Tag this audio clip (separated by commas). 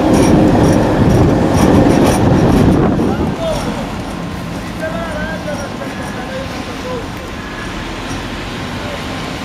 Speech, Train, Vehicle, outside, urban or man-made